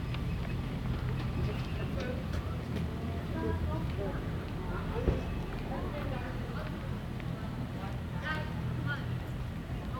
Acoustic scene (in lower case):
residential area